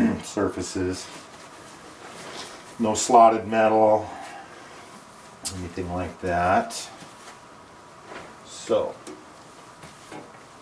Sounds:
inside a small room, Speech

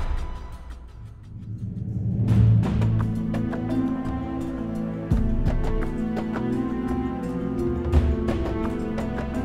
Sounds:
Music

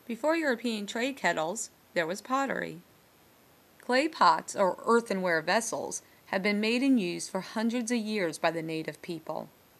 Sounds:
Speech

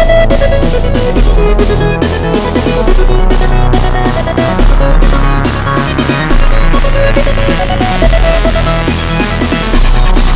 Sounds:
Music

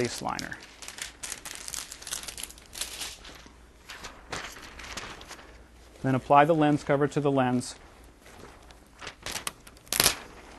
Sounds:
Speech, crinkling

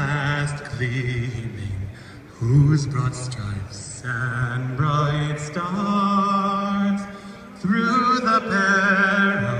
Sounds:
Male singing

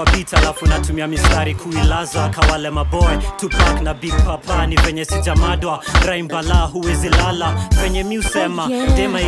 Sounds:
Music, Ska, Jazz, Funk

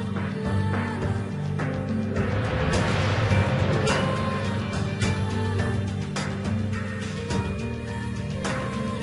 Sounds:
Music

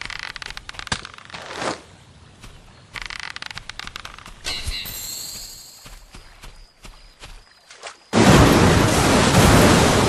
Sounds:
outside, rural or natural

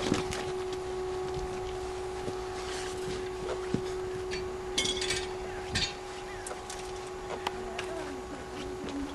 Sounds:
Speech

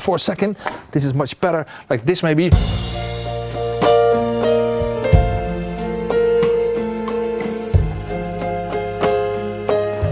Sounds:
Keyboard (musical), Piano, Electric piano

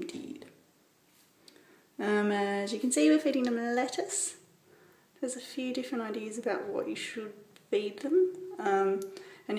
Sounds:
Speech

